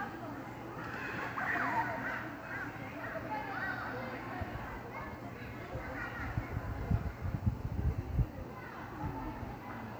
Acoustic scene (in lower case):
park